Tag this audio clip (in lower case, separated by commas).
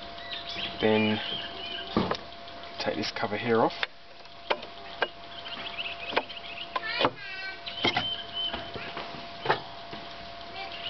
speech, medium engine (mid frequency)